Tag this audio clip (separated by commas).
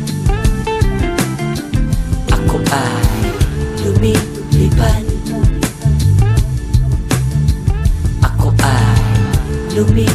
Music